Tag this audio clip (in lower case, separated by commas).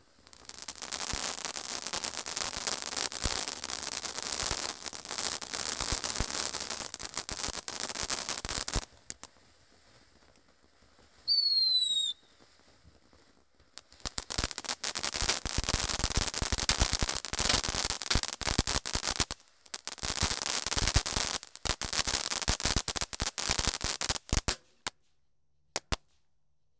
fireworks, explosion